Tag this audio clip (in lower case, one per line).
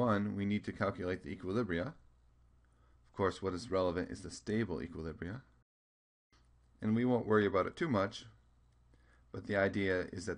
speech